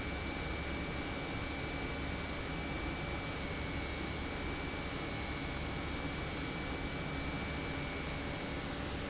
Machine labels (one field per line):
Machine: pump